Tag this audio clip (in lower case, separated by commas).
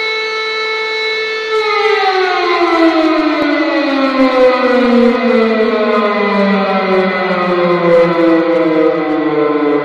civil defense siren